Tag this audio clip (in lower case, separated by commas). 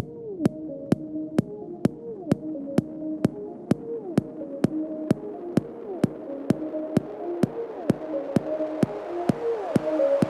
music